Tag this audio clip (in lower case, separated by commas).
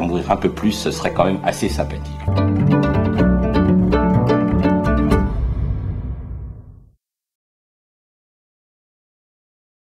speech, music